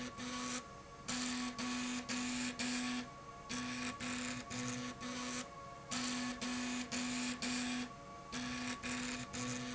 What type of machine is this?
slide rail